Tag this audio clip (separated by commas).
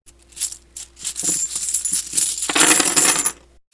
Coin (dropping), home sounds